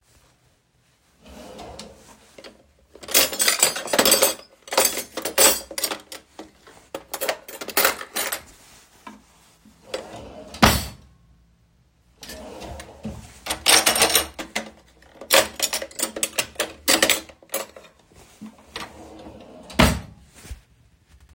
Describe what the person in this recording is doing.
I opened the drawers and collected some cutlery, then closed them back. The clinking of the cutlery and the drawer movements are clearly audible.